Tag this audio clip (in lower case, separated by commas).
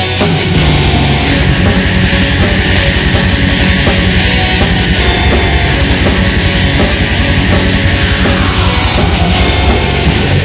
music